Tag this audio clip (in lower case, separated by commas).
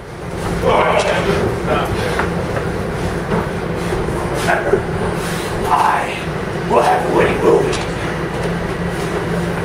metro, speech, train, vehicle